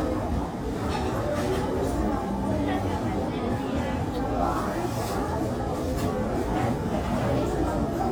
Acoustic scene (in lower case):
crowded indoor space